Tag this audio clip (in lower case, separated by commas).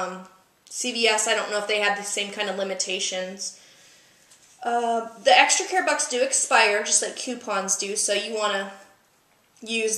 speech, inside a small room